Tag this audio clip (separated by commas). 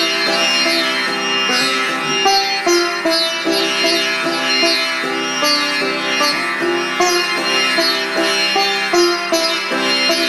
playing sitar